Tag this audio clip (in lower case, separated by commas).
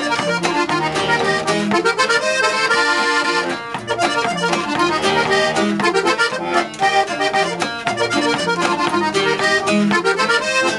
music, theme music